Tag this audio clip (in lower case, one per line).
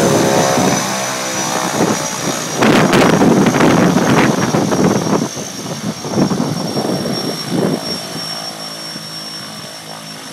propeller
vehicle
aircraft